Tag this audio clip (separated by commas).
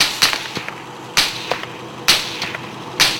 Gunshot, Explosion